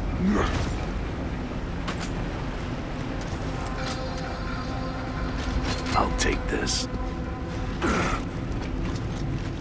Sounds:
Speech

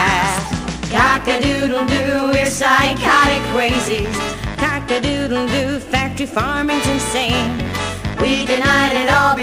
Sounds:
Music

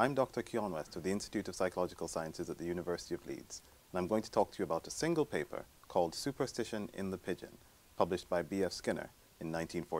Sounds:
Speech

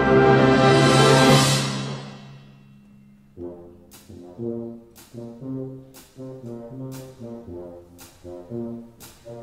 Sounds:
Percussion, Music, Orchestra, Musical instrument, Trombone, Brass instrument

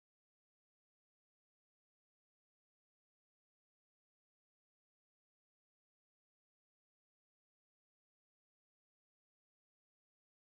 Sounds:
Speech

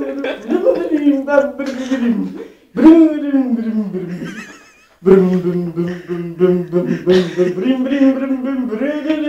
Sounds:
Speech

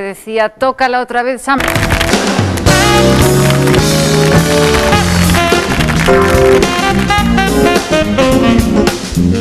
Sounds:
Music, Exciting music, Speech

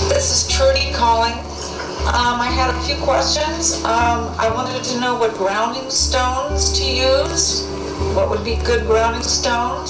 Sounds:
Music, Speech

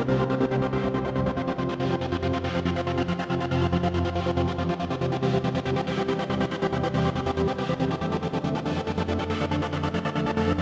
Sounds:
Music

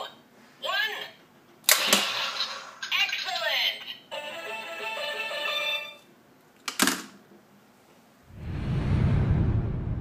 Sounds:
Music, Tick-tock, Speech

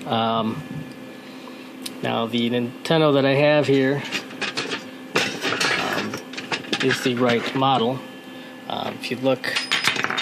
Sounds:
Speech, inside a small room

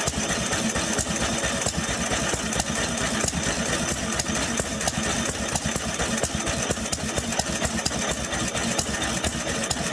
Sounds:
Engine

